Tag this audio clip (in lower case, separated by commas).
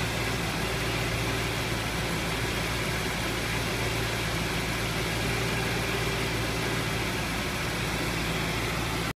vehicle, car